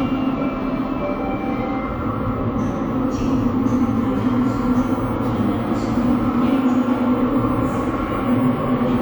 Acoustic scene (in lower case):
subway station